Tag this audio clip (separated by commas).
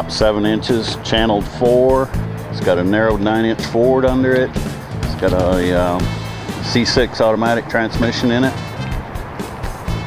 Music, Speech